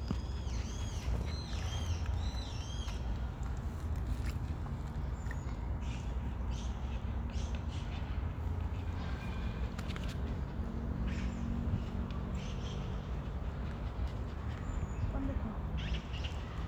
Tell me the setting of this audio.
park